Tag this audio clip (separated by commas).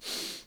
Respiratory sounds